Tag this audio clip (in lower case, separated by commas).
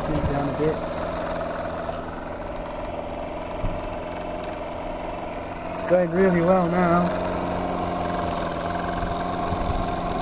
speech, engine